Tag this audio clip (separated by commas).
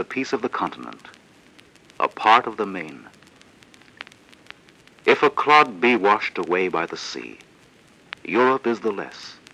Speech